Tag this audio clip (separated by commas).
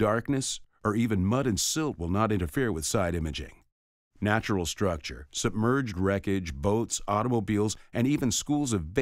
Speech